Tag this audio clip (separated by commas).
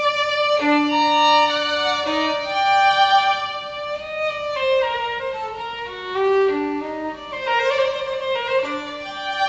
Music, fiddle, Violin, Musical instrument